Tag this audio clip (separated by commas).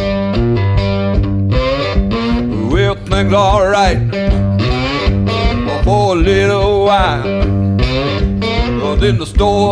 Music